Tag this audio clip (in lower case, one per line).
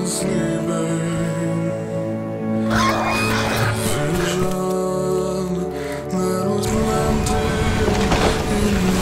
music